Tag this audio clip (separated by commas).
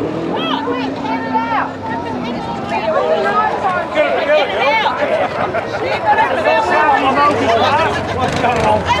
Speech, Vehicle